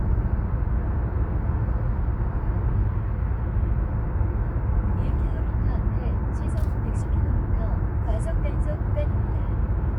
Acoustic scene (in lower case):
car